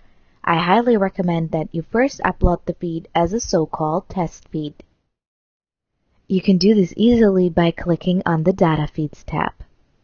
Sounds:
Speech

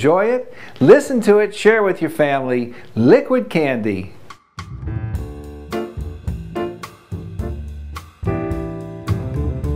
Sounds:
Music, Speech

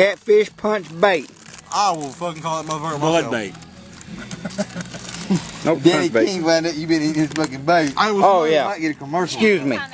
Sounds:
Speech

